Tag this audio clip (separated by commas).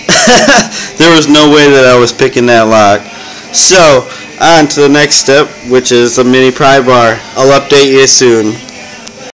Music, Speech